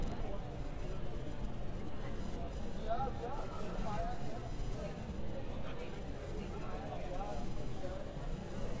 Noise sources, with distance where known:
person or small group talking

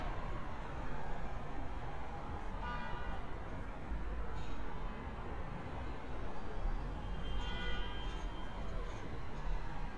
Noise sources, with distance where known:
car horn, far

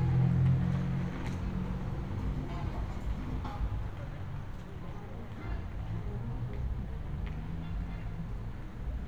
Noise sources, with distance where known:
medium-sounding engine, near; music from a fixed source, far

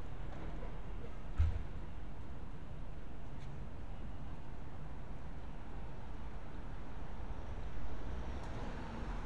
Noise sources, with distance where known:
medium-sounding engine; non-machinery impact

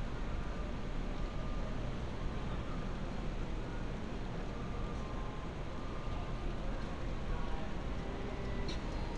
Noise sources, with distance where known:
music from an unclear source, near

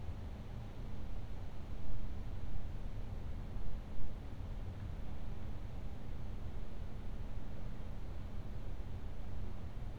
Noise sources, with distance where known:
background noise

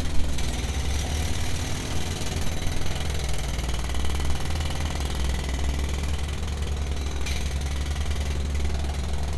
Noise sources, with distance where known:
jackhammer, near

